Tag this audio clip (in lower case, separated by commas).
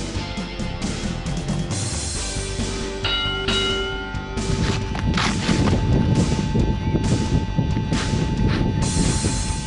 music, speech